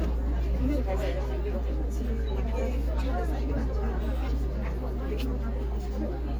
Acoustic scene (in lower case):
crowded indoor space